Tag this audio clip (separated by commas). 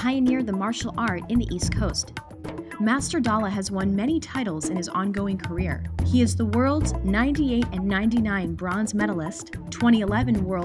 Speech, Music